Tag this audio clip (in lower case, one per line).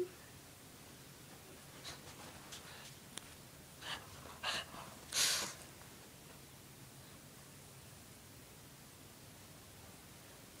cat growling